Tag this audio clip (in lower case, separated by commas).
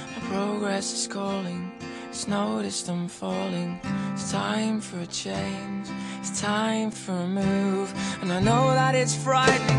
music, blues